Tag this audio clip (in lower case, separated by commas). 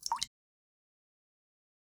liquid, drip